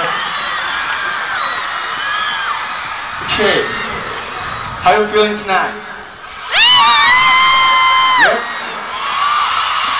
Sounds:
speech

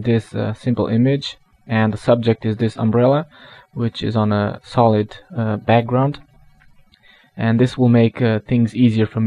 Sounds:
speech

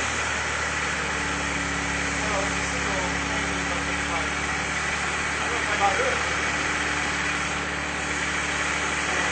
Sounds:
vehicle, speech, car

